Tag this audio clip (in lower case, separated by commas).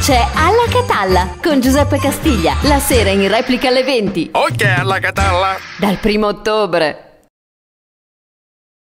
music, speech